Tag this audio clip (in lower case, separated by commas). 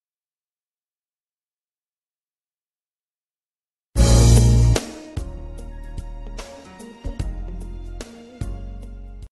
music, speech